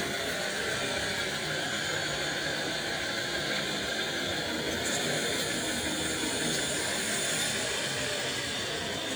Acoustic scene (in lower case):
residential area